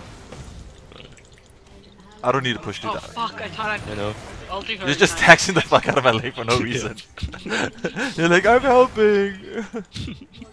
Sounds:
speech

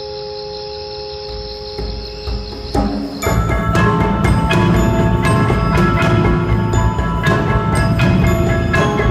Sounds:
percussion
music
wood block

